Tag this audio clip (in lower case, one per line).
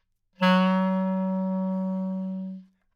musical instrument
woodwind instrument
music